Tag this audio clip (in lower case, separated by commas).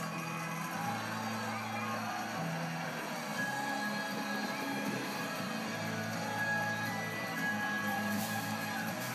music